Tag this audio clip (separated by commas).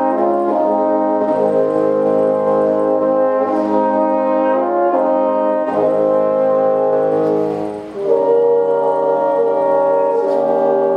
playing french horn